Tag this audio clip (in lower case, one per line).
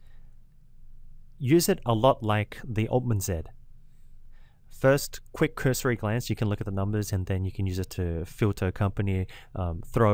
speech